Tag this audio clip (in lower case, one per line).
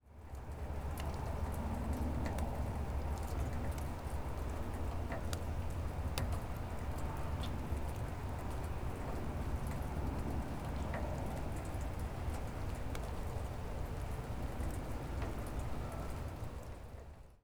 rain
water